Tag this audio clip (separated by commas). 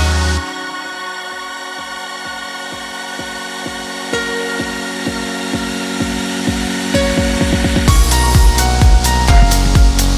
Music